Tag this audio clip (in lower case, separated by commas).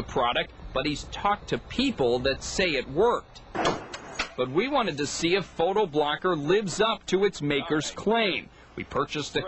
speech